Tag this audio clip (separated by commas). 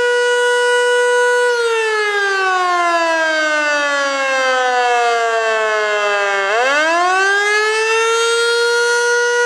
Air horn